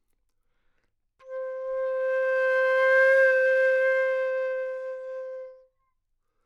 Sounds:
wind instrument, music, musical instrument

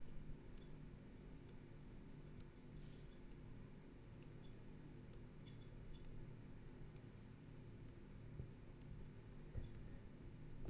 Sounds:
water tap, home sounds

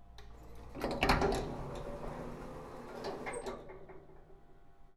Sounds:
door, home sounds, sliding door

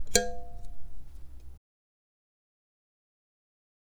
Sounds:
speech, male speech, human voice

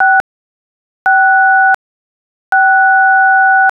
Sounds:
telephone, alarm

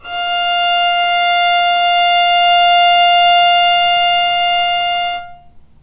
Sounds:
musical instrument, bowed string instrument, music

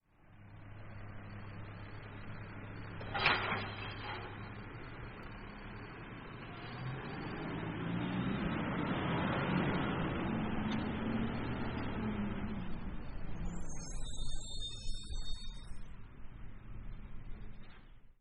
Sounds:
motor vehicle (road), truck, vehicle

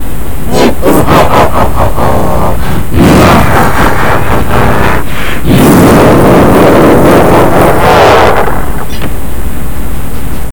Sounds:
human voice, laughter

